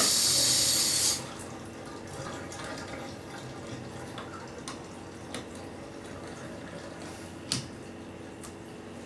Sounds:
water
faucet
sink (filling or washing)

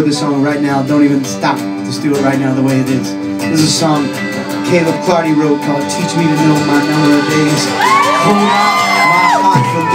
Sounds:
music
speech

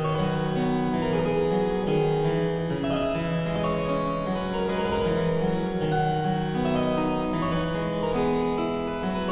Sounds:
music
harpsichord
playing harpsichord

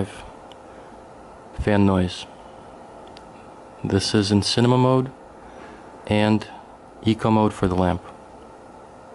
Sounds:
speech
white noise

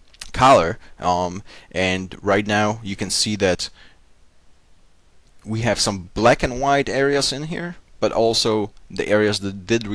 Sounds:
speech

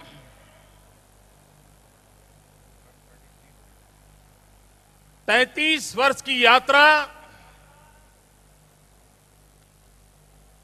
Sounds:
narration
man speaking
speech

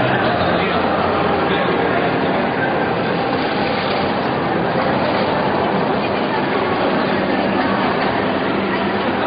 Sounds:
speech

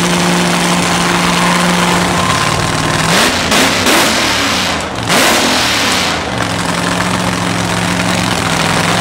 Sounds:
car
vehicle

